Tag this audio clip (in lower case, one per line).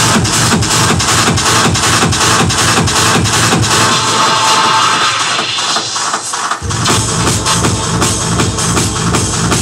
music
electronic music
techno